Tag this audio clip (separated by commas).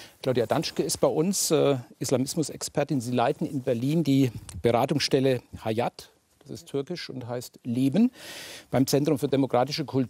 Speech